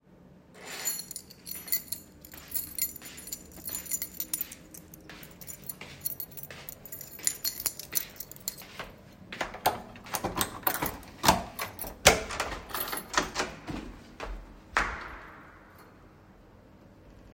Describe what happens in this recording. I walked toward the front door with my keys in hand jingling them as I approached. I opened the door while the keychain sounds were still audible. I then stepped back from the door with footsteps clearly audible while the keys were still jingling and the door was open creating an overlap of all three sounds.